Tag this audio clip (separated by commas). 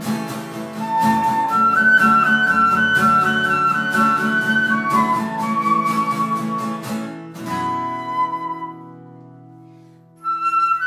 playing flute